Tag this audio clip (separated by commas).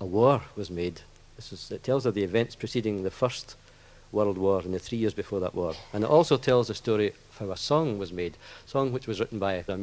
Speech